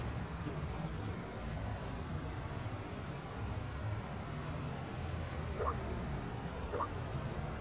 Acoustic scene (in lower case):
residential area